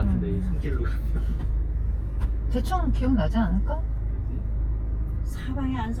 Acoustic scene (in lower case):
car